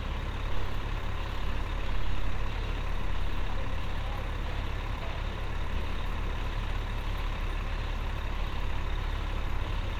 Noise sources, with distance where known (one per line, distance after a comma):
large-sounding engine